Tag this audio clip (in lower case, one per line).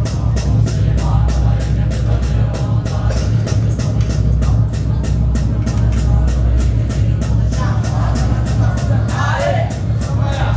music
chant